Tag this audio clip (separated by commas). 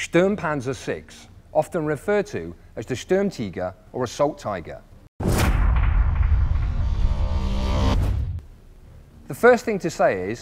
Music, Speech